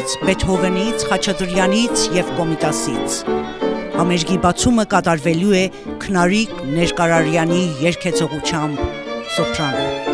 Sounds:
violin, bowed string instrument

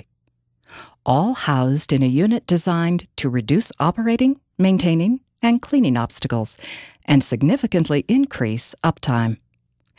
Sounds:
speech

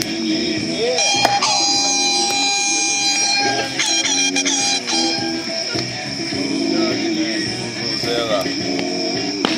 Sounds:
air horn

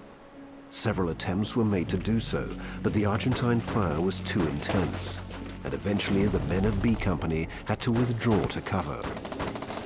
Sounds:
speech, music

